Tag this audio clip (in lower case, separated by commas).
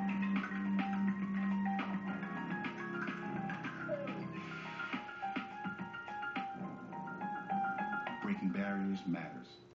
music, speech